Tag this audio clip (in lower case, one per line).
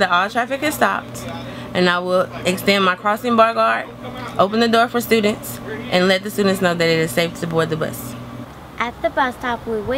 speech